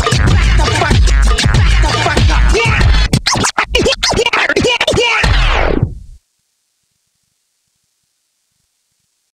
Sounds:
Scratching (performance technique), Music

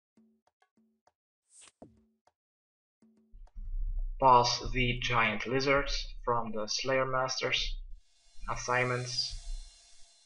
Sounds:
Speech

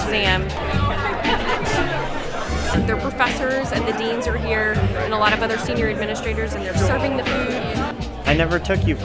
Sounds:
Music, Speech

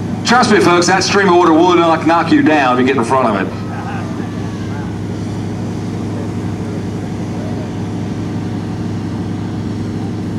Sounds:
Speech

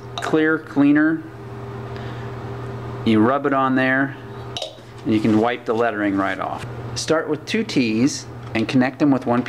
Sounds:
Speech

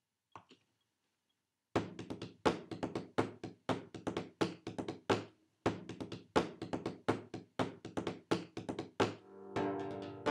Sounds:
Musical instrument, Music, inside a small room

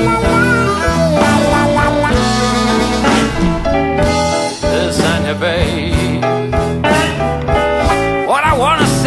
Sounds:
Music, Musical instrument

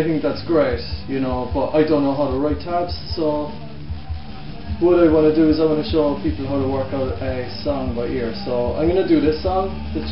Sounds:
Speech, Music

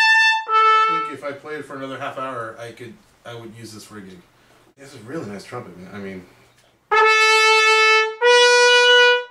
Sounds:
Speech, Music, Musical instrument, Trumpet

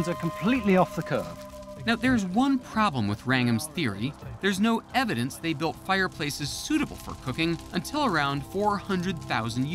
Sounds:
Speech, Music

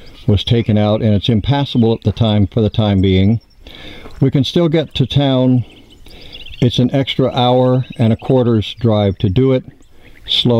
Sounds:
Speech

